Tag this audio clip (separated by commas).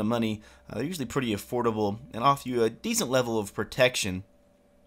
Speech